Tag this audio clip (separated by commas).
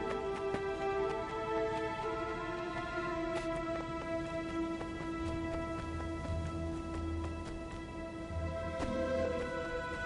Music, Run